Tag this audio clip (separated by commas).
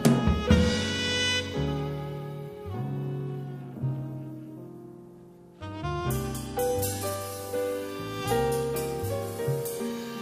Music